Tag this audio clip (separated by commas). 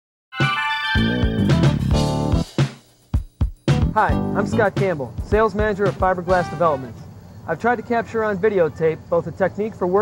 Music, Speech